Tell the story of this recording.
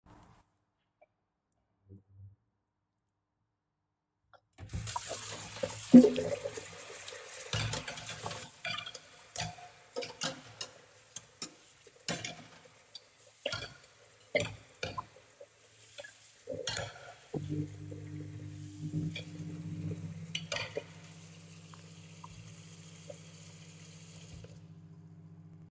I turned on the water in the kitchen sink. While the water was running, I washed some dishes. During this time, I also turned on the microwave.